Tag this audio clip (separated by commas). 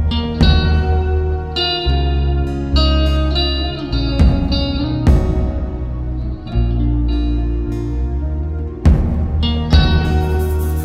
Guitar, Plucked string instrument, Music